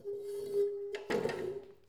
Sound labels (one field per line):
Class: furniture moving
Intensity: low